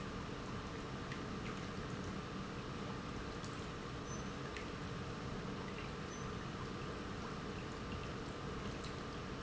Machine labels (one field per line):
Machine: pump